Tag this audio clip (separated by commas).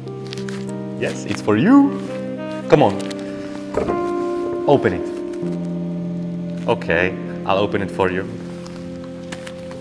Speech, Artillery fire, Music